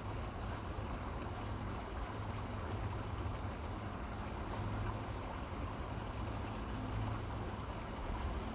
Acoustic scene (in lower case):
park